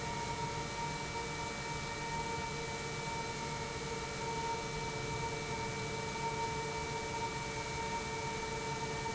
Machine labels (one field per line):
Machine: pump